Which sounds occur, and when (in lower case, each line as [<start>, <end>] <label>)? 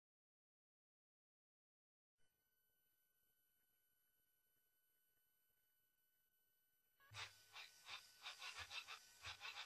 [2.18, 9.65] brief tone
[7.16, 9.65] music